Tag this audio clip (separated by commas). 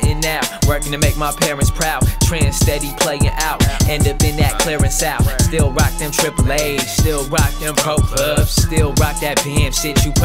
Rhythm and blues, Music